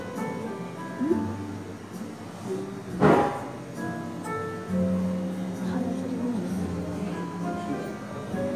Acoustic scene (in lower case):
cafe